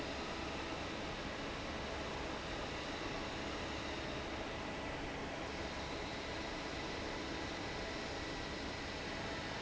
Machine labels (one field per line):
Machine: fan